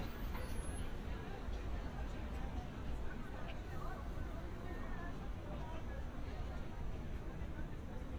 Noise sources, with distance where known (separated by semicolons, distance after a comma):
person or small group talking, far